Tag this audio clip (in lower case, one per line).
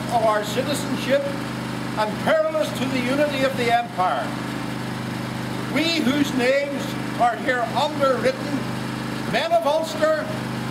monologue
man speaking
speech